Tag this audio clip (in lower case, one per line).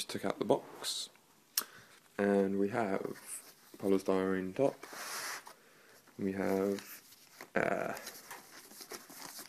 speech